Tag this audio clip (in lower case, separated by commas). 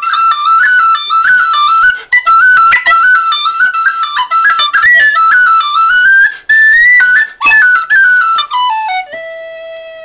inside a small room, music